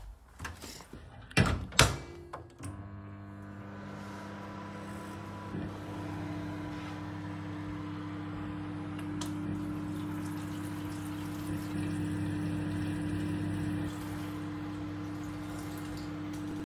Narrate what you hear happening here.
I walked into the kitchen and put food in the microwave. After starting it, I turned on the tap water to wash the dishes.